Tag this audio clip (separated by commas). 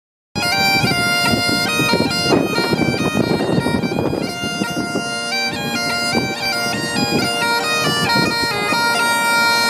playing bagpipes